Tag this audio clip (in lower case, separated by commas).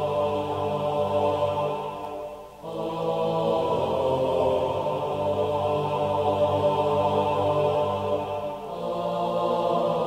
music